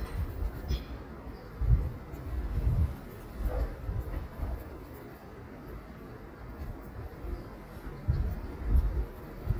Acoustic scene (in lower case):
residential area